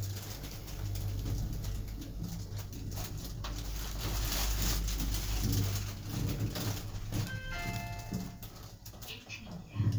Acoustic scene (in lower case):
elevator